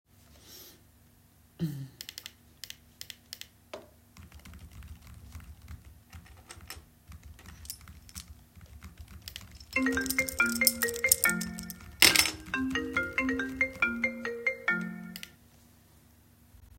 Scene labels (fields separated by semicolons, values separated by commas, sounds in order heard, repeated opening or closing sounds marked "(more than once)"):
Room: office; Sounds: keyboard typing, keys, phone ringing